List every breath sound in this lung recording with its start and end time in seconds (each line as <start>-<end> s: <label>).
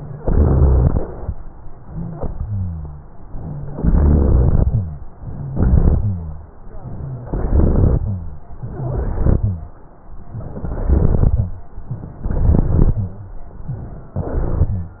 0.13-1.24 s: inhalation
0.13-1.24 s: crackles
1.90-3.02 s: exhalation
1.90-3.02 s: wheeze
3.38-3.74 s: rhonchi
3.68-4.80 s: inhalation
3.70-4.69 s: crackles
4.69-5.03 s: rhonchi
5.31-5.54 s: rhonchi
5.54-6.02 s: inhalation
5.54-6.02 s: crackles
6.01-6.49 s: rhonchi
7.29-8.08 s: inhalation
7.29-8.08 s: crackles
8.63-9.43 s: inhalation
8.63-9.43 s: crackles
10.44-11.42 s: inhalation
10.44-11.42 s: crackles
11.90-12.11 s: rhonchi
12.22-12.98 s: inhalation
12.22-12.98 s: crackles
12.98-13.38 s: rhonchi
14.17-14.80 s: inhalation
14.17-14.80 s: crackles